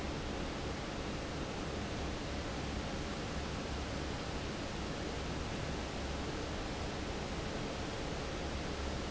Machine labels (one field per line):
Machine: fan